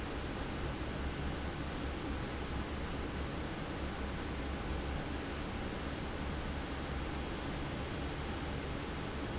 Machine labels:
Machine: fan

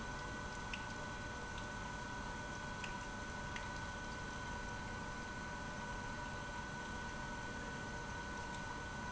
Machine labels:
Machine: pump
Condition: abnormal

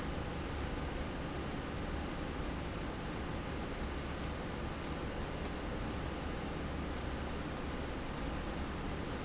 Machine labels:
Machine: slide rail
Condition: abnormal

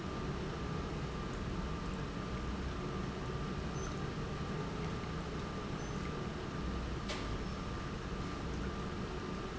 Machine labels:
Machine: pump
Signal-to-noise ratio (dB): -6 dB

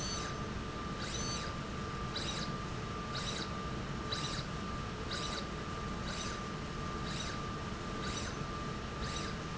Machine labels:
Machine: slide rail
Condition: abnormal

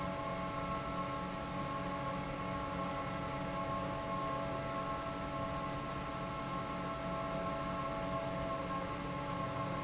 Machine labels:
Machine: fan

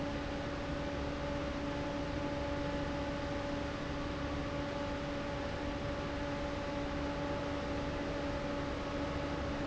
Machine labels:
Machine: fan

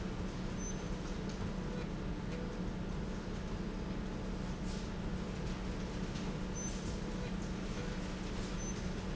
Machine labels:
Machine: slide rail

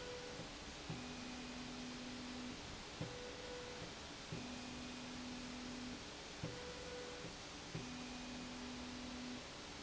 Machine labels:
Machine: slide rail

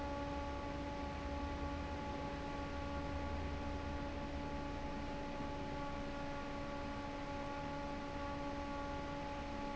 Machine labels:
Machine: fan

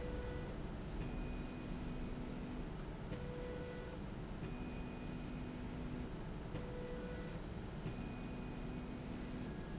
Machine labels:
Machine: slide rail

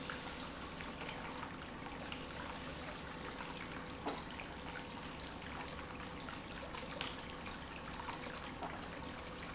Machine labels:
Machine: pump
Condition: normal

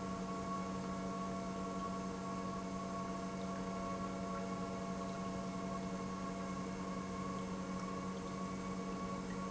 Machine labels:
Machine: pump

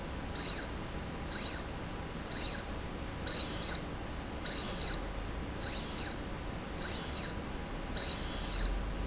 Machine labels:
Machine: slide rail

